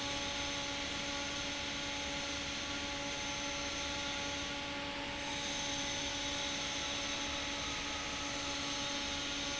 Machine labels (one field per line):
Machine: fan